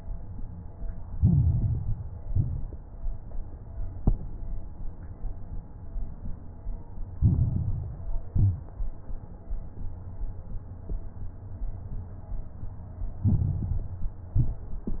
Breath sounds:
Inhalation: 1.08-2.14 s, 7.12-8.19 s, 13.22-14.29 s
Exhalation: 2.18-2.84 s, 8.28-8.94 s, 14.35-15.00 s
Crackles: 1.08-2.14 s, 2.18-2.84 s, 7.12-8.19 s, 8.28-8.94 s, 13.22-14.29 s, 14.35-15.00 s

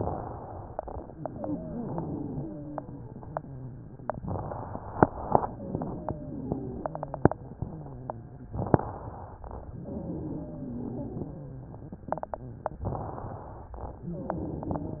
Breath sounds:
Inhalation: 0.00-0.78 s, 4.23-5.01 s, 8.63-9.41 s, 12.94-13.72 s
Wheeze: 1.04-2.97 s, 5.43-7.35 s, 9.71-11.64 s, 13.98-15.00 s

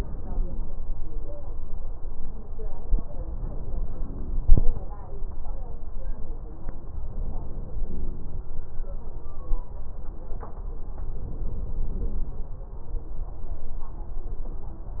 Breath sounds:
Inhalation: 3.34-4.84 s, 6.97-8.47 s, 11.04-12.54 s
Crackles: 6.97-8.47 s

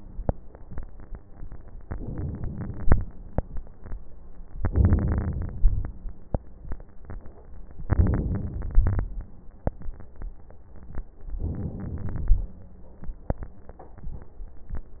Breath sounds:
Inhalation: 1.82-3.00 s, 4.62-5.85 s, 7.88-9.09 s, 11.38-12.52 s
Crackles: 4.62-5.85 s, 7.88-9.09 s

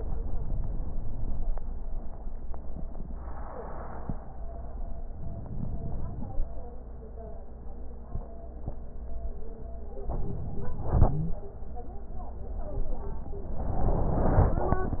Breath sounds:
Inhalation: 5.14-6.38 s, 10.02-11.04 s

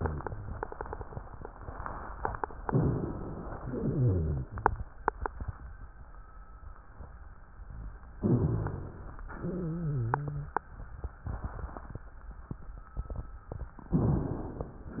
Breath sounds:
Inhalation: 2.68-3.63 s, 8.23-9.19 s, 14.00-15.00 s
Exhalation: 3.64-4.59 s, 9.32-10.55 s
Wheeze: 3.64-4.59 s, 9.32-10.55 s
Rhonchi: 8.23-8.98 s

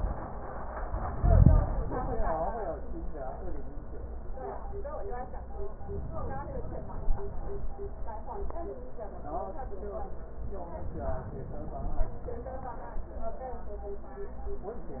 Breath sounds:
Inhalation: 5.84-7.64 s, 10.59-12.39 s

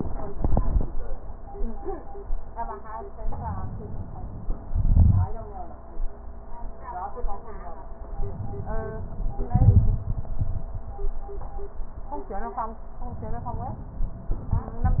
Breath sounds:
Inhalation: 3.20-4.70 s, 8.04-9.44 s, 13.04-14.37 s
Exhalation: 4.75-5.37 s, 9.52-10.86 s
Crackles: 4.75-5.37 s, 9.52-10.86 s

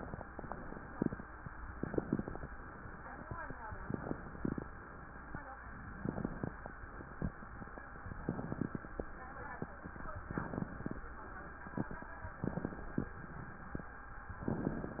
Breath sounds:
Inhalation: 1.68-2.52 s, 3.80-4.64 s, 5.95-6.78 s, 8.14-8.98 s, 10.19-11.02 s, 12.37-13.20 s, 14.39-15.00 s
Crackles: 1.68-2.52 s, 3.80-4.64 s, 5.95-6.78 s, 8.14-8.98 s, 10.19-11.02 s, 12.37-13.20 s, 14.39-15.00 s

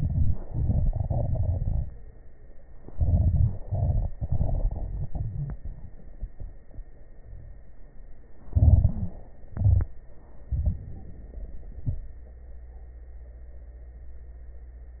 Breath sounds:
Inhalation: 0.00-0.41 s, 2.93-3.59 s, 8.53-9.20 s, 10.49-10.89 s
Exhalation: 0.44-1.93 s, 3.59-5.60 s, 9.51-9.96 s
Wheeze: 4.77-5.60 s, 7.19-7.69 s, 8.75-9.20 s
Crackles: 0.44-1.93 s, 2.93-3.59 s

